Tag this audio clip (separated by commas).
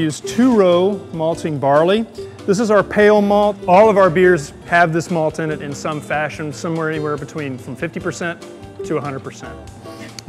Music, Speech